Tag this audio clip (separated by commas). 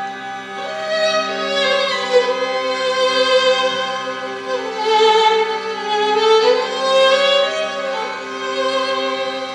fiddle, Music, Musical instrument